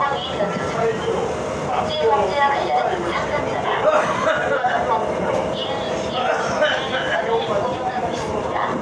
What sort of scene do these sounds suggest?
subway train